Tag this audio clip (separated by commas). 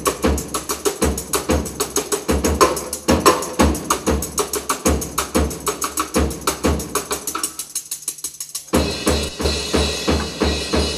Music, Musical instrument, Drum, Drum kit, Cymbal, Bass drum, Snare drum